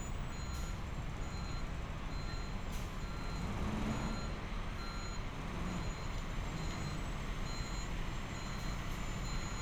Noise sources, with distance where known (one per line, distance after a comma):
reverse beeper, near